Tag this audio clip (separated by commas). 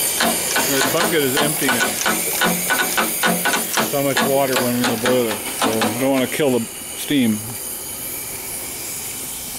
Steam, Hiss